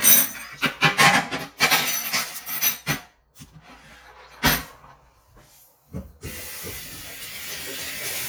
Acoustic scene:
kitchen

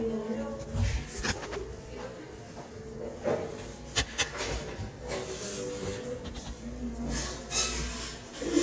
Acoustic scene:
crowded indoor space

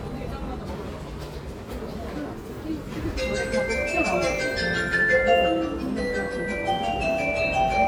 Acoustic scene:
subway station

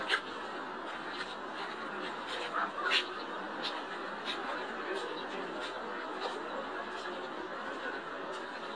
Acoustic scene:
park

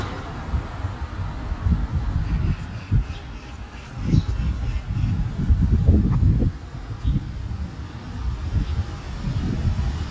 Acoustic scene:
street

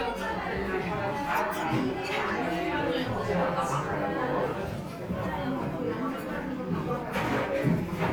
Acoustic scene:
crowded indoor space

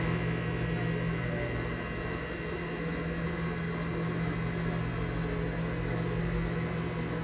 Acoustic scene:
kitchen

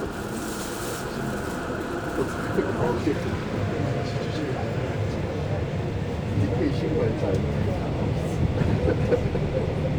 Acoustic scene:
subway train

